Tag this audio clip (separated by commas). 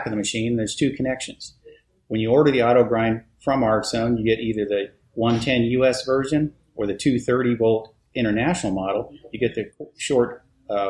Speech